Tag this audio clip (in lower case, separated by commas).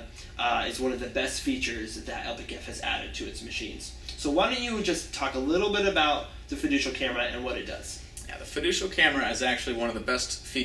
speech